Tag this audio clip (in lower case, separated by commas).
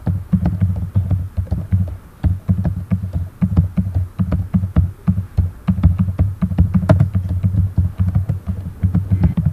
typing, domestic sounds, computer keyboard